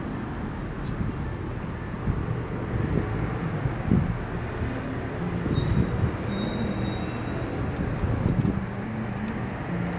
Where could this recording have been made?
on a street